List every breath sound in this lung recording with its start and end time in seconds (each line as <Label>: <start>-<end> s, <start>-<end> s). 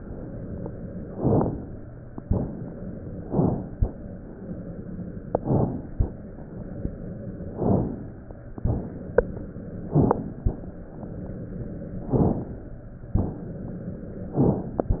Inhalation: 1.10-1.89 s, 3.22-3.79 s, 5.34-5.91 s, 7.52-8.19 s, 9.79-10.47 s, 12.09-12.77 s
Exhalation: 2.23-2.75 s, 8.62-9.07 s, 13.18-13.63 s